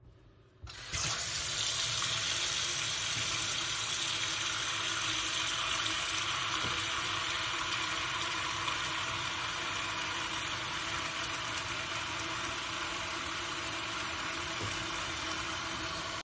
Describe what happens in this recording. Went into the bathroom. Turned the tap, let the water flow while I was washing my hands, and then turned the water off.